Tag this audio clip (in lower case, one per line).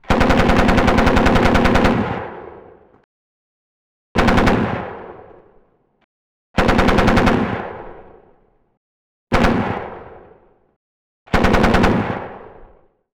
gunfire
explosion